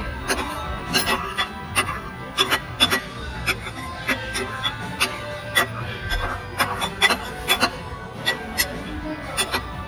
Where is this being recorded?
in a restaurant